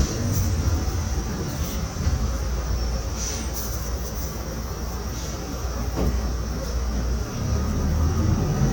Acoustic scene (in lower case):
bus